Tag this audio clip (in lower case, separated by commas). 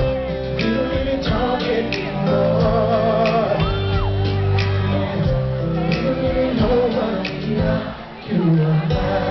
music, speech